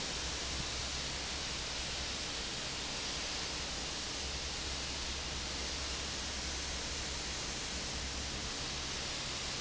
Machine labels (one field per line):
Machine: fan